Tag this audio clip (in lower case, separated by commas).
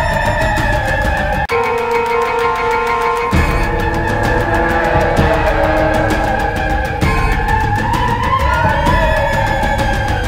music, scary music